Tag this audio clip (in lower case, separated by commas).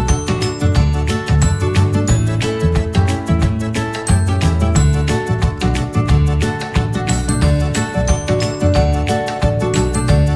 music